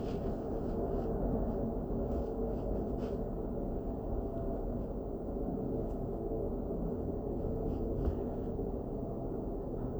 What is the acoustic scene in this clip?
elevator